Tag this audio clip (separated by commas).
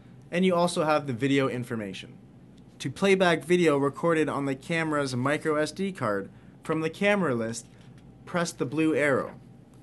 Speech